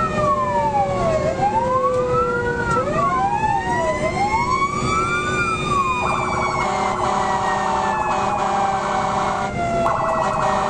Emergency sirens wail and honk